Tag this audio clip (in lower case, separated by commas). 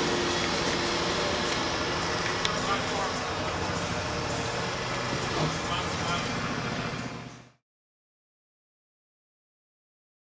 speech, outside, urban or man-made, vehicle